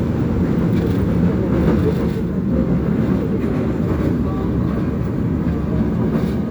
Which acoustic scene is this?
subway train